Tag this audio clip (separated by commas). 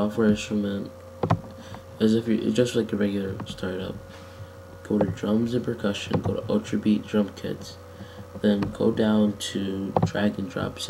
Speech